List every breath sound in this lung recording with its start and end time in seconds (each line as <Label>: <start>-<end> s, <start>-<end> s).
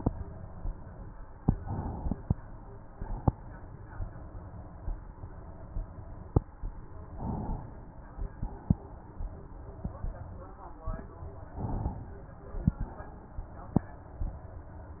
Inhalation: 1.47-2.94 s, 7.11-8.18 s, 11.56-12.74 s
Exhalation: 2.94-4.81 s, 8.18-9.83 s, 12.74-14.22 s